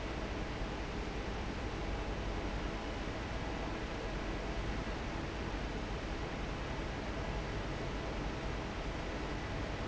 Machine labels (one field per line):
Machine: fan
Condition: normal